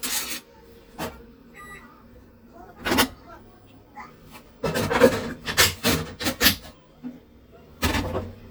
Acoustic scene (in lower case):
kitchen